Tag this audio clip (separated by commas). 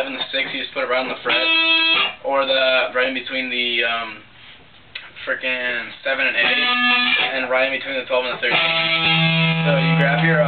Music, Speech